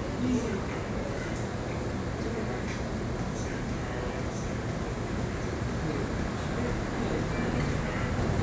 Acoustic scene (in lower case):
crowded indoor space